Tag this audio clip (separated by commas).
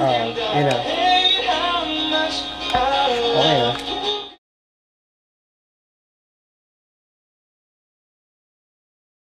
Speech, Music